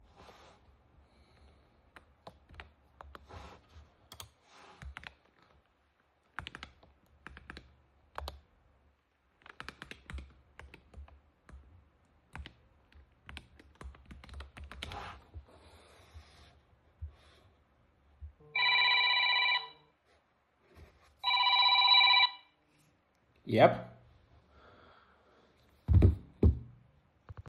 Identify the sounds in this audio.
keyboard typing, phone ringing